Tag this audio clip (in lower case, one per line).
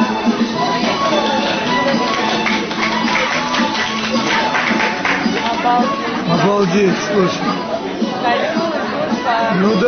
speech
music